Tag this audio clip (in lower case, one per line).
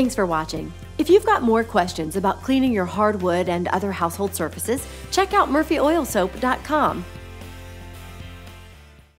speech
music